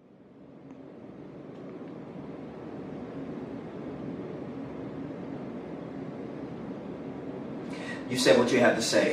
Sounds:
Speech, monologue

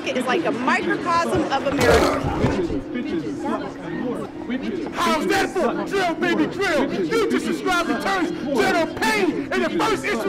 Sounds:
Speech, Chatter

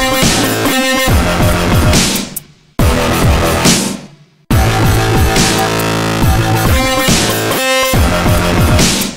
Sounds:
Dubstep, Music, Electronic music

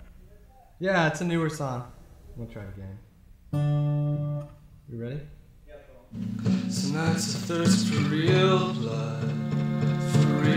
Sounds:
Music, Speech

